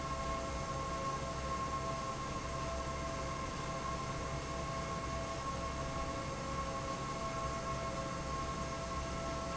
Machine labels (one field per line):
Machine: fan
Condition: normal